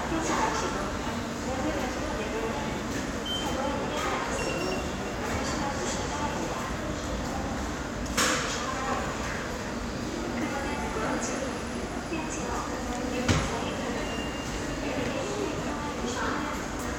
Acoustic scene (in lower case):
subway station